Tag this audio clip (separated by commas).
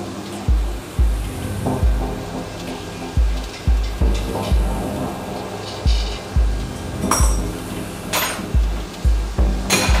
Music